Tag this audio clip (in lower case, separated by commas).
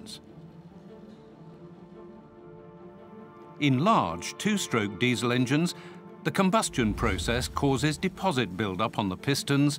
speech